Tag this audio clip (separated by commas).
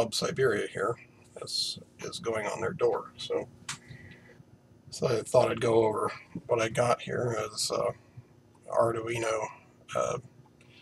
Speech